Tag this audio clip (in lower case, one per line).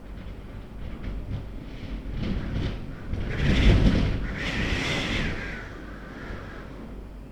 wind